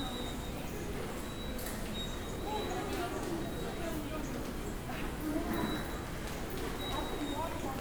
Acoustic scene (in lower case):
subway station